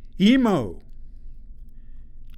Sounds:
man speaking, Human voice, Speech

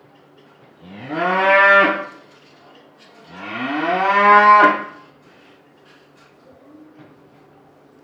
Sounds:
Animal, livestock

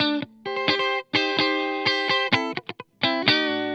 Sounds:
Music, Musical instrument, Electric guitar, Guitar, Plucked string instrument

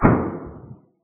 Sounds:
Explosion

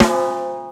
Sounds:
Percussion, Snare drum, Musical instrument, Music, Drum

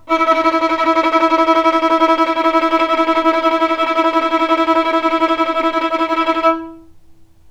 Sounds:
Music, Bowed string instrument, Musical instrument

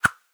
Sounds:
swoosh

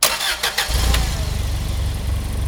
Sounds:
Engine

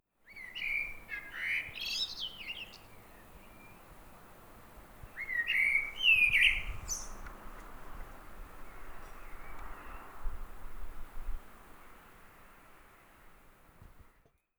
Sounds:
bird song, Bird, Animal, Wild animals

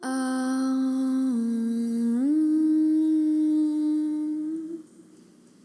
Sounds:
Human voice

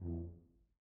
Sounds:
Music, Musical instrument, Brass instrument

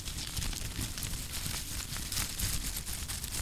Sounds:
crinkling

